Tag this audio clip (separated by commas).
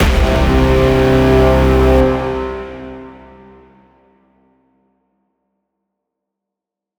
Brass instrument, Musical instrument, Music